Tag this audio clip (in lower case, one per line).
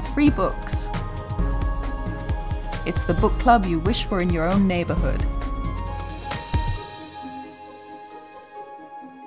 music
speech